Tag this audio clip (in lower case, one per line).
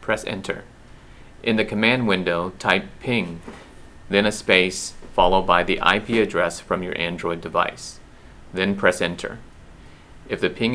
speech